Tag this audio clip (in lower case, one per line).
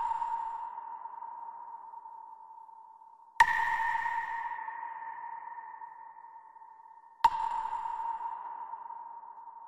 music
sonar